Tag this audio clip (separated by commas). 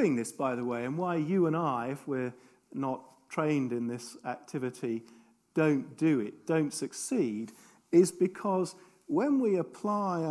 Speech